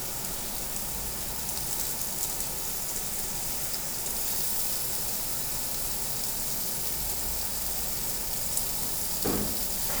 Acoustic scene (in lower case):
restaurant